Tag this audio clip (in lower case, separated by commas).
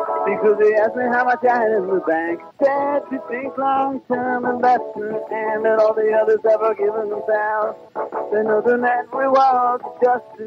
music, radio